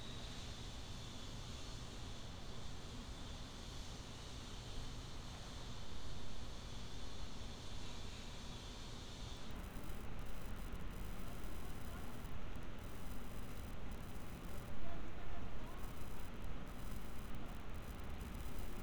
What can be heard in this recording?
background noise